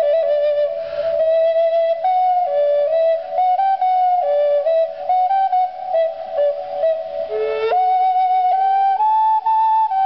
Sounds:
Music, Flute

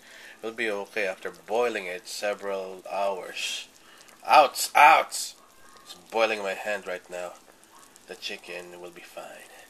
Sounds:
Speech, Boiling

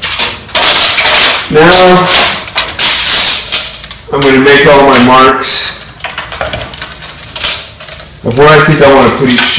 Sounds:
inside a small room, Speech

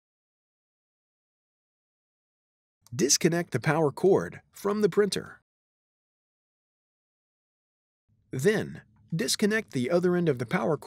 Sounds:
Speech

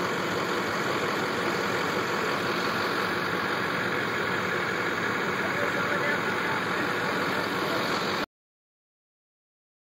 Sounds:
Truck, Vehicle, Idling

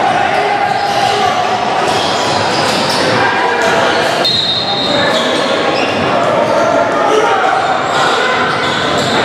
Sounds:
basketball bounce

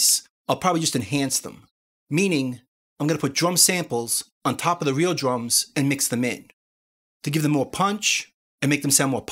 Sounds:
Speech

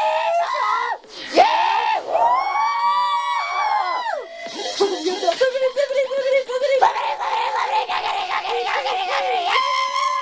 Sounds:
Music, Electronic music, Dubstep, Female singing

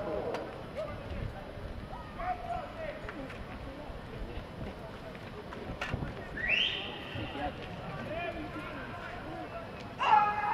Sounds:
Run, Speech

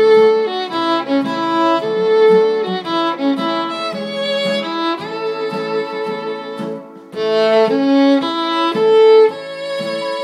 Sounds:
fiddle, Musical instrument, Music

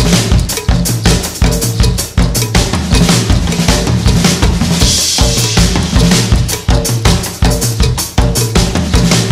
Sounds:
Percussion, Bass drum, Music, Musical instrument, Hi-hat, Cymbal, Drum kit, Drum, Snare drum

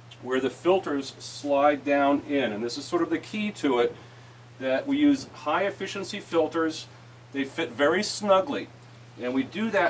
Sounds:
Speech

